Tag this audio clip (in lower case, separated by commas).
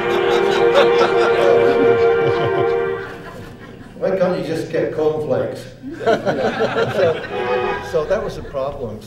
chuckle, speech